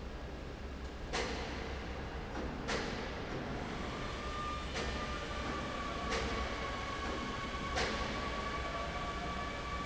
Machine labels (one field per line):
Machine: fan